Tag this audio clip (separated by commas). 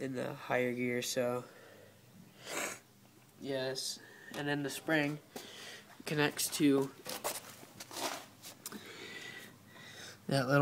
Speech